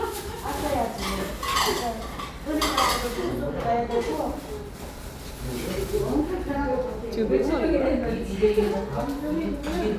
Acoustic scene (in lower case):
restaurant